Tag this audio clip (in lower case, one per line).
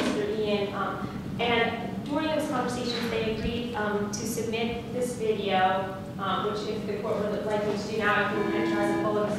speech